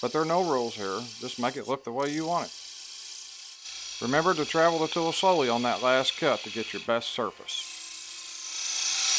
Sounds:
power tool, tools

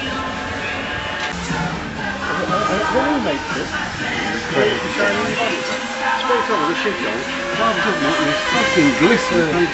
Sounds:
speech, music

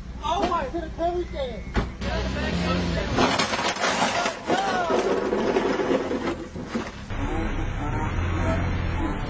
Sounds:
speech, car, vehicle

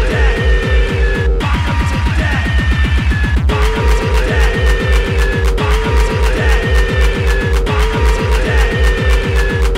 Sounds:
music, musical instrument

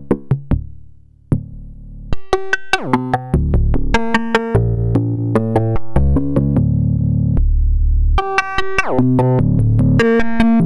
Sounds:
harmonic, music

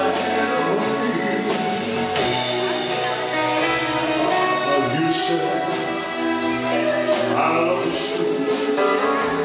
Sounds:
music, male singing

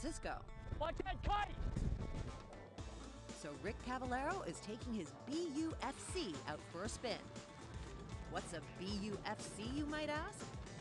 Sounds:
speech, music

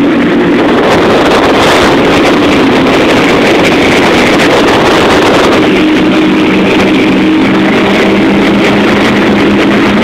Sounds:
speedboat, vehicle, motorboat, water vehicle

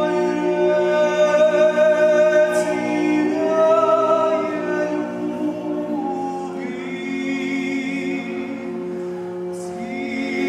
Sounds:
choir, music, male singing

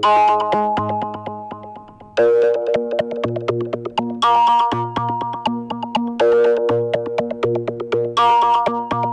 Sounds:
synthesizer, music

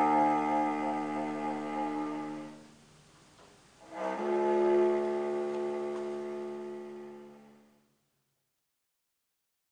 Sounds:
musical instrument, music

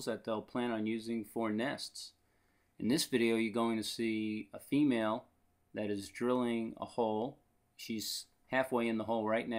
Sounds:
speech

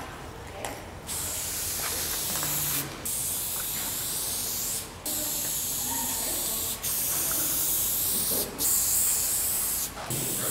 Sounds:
spray, speech

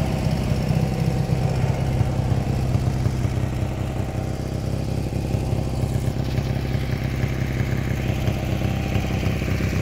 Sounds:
idling, vehicle, motorcycle

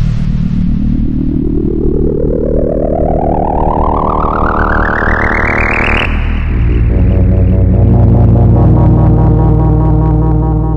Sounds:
music, musical instrument, keyboard (musical), synthesizer, playing synthesizer

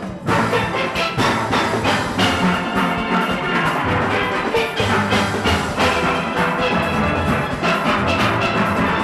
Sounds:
steelpan, music

